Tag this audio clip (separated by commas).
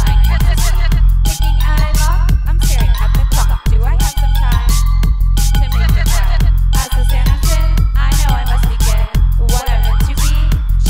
Music, Punk rock